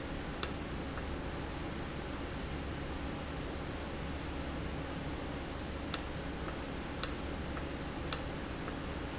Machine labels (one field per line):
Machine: valve